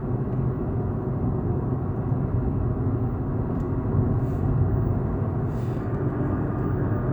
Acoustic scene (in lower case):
car